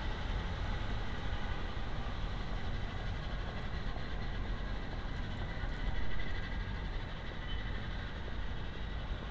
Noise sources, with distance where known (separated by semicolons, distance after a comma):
large-sounding engine; siren, far